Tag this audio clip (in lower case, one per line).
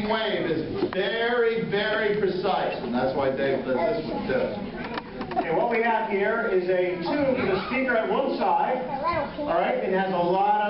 tap
rustle
speech